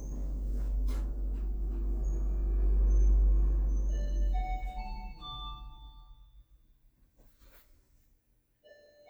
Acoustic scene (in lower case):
elevator